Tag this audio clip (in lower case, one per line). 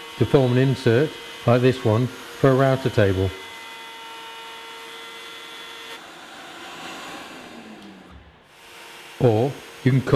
tools
speech
power tool